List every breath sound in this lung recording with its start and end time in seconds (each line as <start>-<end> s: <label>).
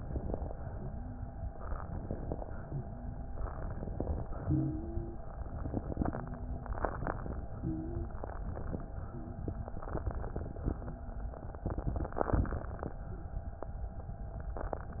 0.00-0.61 s: inhalation
0.69-1.47 s: wheeze
1.83-2.74 s: inhalation
2.84-3.45 s: wheeze
3.51-4.21 s: inhalation
4.23-5.22 s: exhalation
4.41-5.22 s: wheeze
5.46-6.11 s: inhalation
6.09-6.73 s: wheeze
6.77-7.42 s: inhalation
7.50-8.14 s: wheeze
8.16-8.81 s: inhalation
9.07-9.44 s: wheeze
9.70-10.75 s: inhalation
10.76-11.37 s: wheeze
13.06-13.39 s: wheeze